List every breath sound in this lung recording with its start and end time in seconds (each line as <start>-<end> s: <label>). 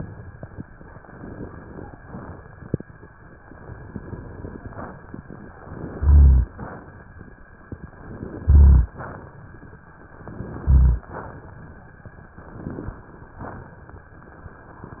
1.06-1.96 s: inhalation
5.58-6.47 s: inhalation
5.98-6.49 s: rhonchi
8.04-8.94 s: inhalation
8.41-8.92 s: rhonchi
10.21-11.10 s: inhalation
10.59-11.10 s: rhonchi
12.47-13.36 s: inhalation